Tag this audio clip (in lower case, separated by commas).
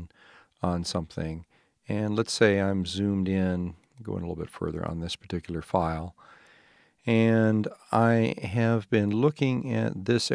speech